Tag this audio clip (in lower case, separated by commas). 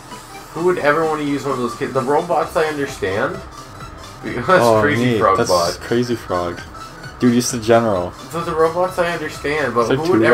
speech, music